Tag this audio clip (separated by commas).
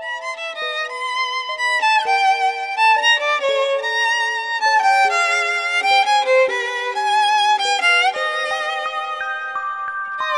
fiddle, Music